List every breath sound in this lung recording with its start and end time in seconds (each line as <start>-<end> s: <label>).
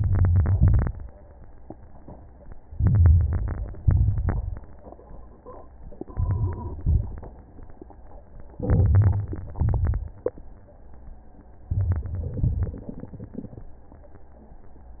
0.00-0.87 s: exhalation
0.00-0.87 s: crackles
2.73-3.81 s: inhalation
2.73-3.81 s: crackles
3.84-4.62 s: exhalation
3.84-4.62 s: crackles
5.91-6.80 s: inhalation
5.91-6.80 s: crackles
6.84-7.43 s: exhalation
6.84-7.43 s: crackles
8.57-9.57 s: inhalation
8.57-9.57 s: crackles
9.58-10.23 s: exhalation
9.58-10.23 s: crackles
11.70-12.41 s: inhalation
11.70-12.41 s: crackles
12.48-13.14 s: exhalation
12.48-13.14 s: crackles